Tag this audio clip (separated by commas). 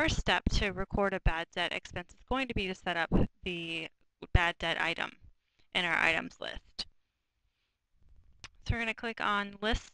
Speech